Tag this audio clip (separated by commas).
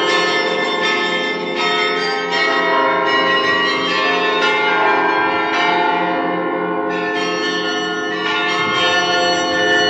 Bell, Music